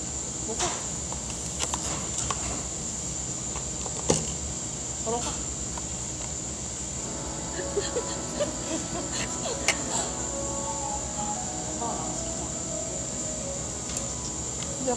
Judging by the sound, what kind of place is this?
cafe